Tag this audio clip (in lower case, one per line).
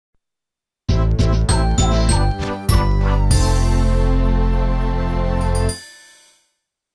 music
theme music